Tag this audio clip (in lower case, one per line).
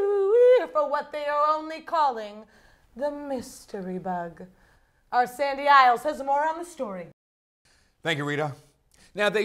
speech